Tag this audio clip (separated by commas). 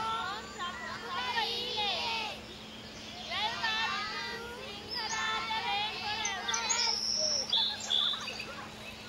Speech